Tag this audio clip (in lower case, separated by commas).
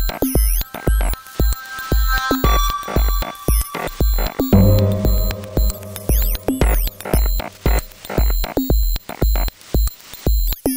music